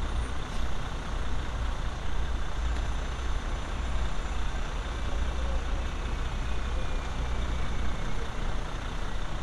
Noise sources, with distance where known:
large-sounding engine, near

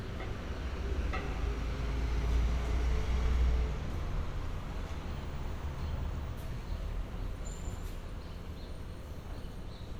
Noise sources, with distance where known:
engine of unclear size

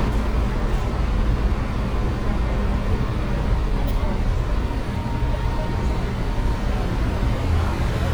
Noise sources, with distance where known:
engine of unclear size, near

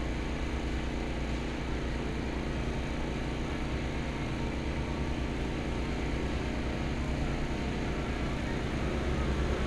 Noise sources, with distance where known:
engine of unclear size

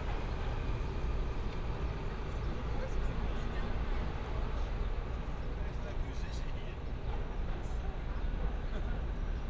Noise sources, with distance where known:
person or small group talking, near

